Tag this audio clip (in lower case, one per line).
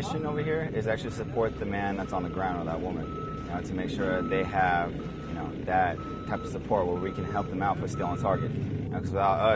speech